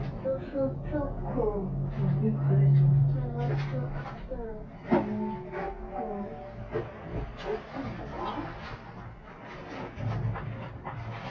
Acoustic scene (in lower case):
elevator